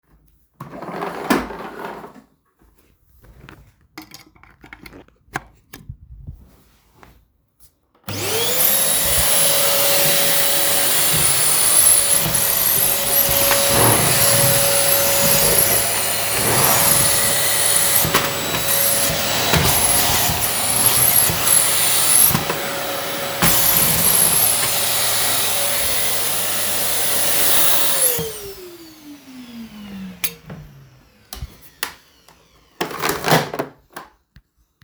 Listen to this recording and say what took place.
I turned the vacuum cleaner on, cleaned my room and then turned it off